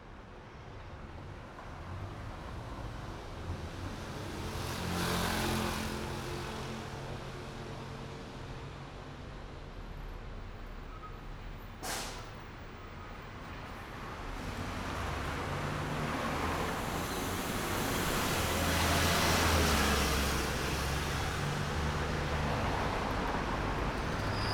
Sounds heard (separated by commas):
motorcycle engine accelerating, bus, car, bus brakes, car wheels rolling, bus engine accelerating, bus compressor, motorcycle